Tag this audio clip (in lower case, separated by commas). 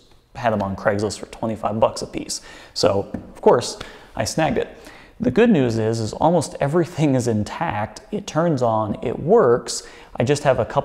speech